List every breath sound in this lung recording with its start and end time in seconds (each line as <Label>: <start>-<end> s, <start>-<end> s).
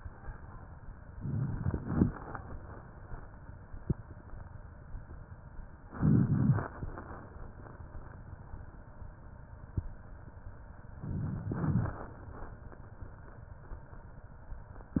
Inhalation: 1.18-2.11 s, 5.92-6.85 s, 11.08-12.01 s
Crackles: 1.18-2.11 s, 5.92-6.85 s, 11.08-12.01 s